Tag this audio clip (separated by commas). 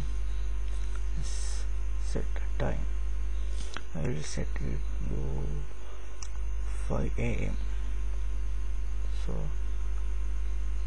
Speech